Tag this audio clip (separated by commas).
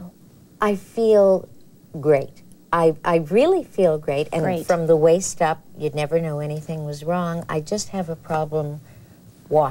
Speech